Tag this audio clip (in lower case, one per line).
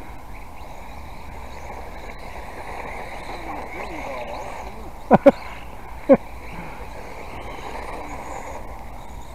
speech